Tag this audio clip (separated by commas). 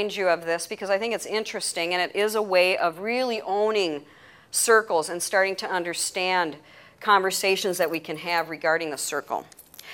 Speech